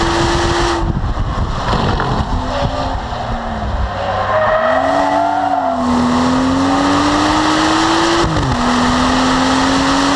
Motor acceleration, vehicle, squealing tires